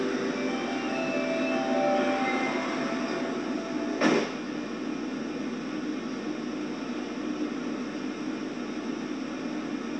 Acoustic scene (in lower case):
subway train